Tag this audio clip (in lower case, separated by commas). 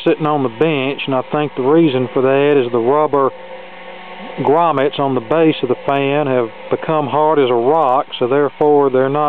mechanical fan, inside a small room, speech